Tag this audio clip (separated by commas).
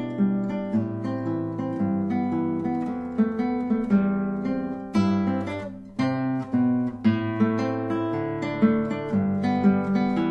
Music